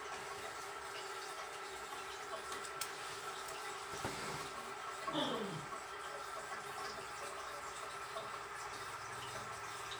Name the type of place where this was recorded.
restroom